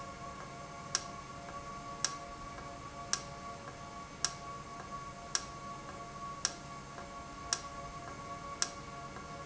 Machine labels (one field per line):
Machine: valve